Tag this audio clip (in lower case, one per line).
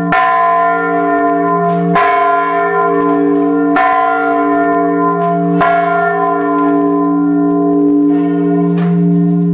church bell ringing